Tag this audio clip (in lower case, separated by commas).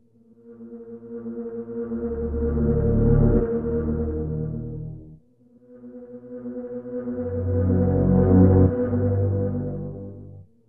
sound effect, music